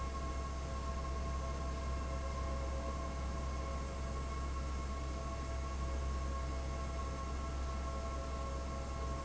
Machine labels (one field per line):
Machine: fan